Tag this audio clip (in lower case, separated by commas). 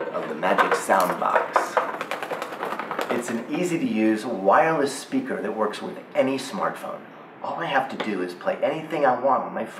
speech, inside a large room or hall